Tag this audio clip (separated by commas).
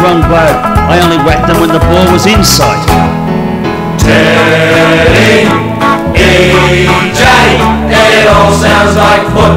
Music